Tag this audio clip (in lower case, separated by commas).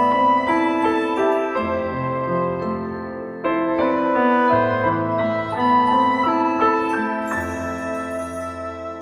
music